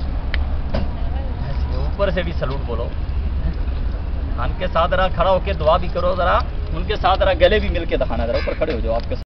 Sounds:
speech

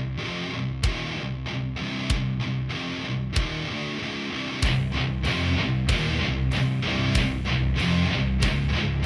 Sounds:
music

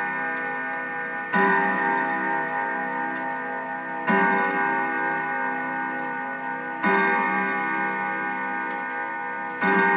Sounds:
music

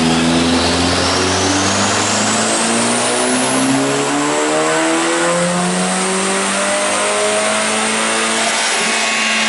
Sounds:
vehicle

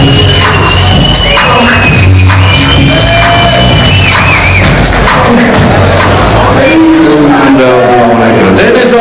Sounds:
speech, music

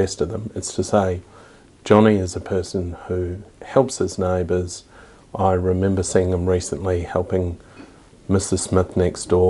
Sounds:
speech

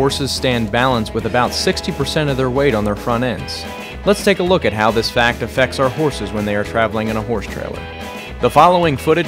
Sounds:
speech, music

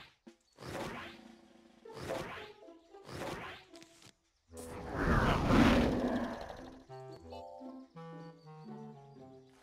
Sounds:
music

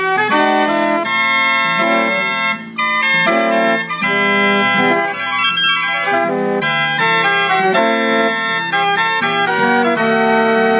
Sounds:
musical instrument, violin, music

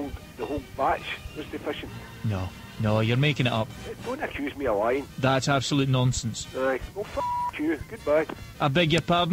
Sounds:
music, speech

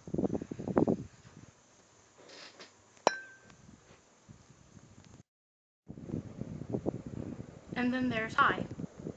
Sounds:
speech, mechanical fan

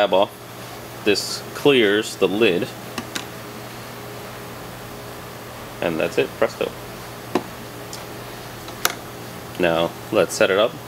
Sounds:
inside a small room, speech

